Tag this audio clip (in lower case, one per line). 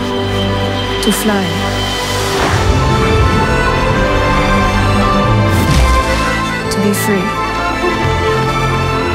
music
speech